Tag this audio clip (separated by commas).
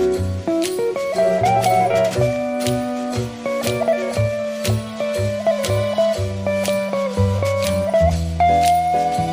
Music